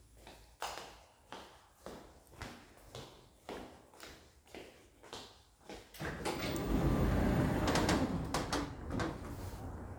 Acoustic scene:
elevator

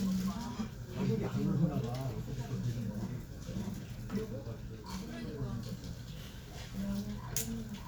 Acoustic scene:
crowded indoor space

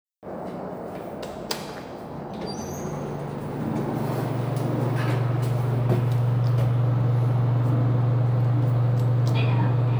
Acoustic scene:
elevator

